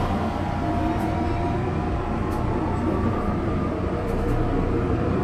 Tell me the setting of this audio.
subway train